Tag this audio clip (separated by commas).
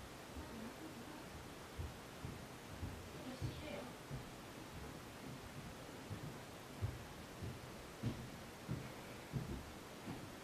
Speech